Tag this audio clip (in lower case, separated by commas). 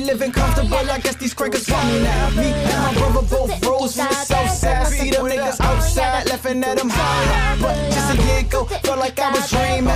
music, soundtrack music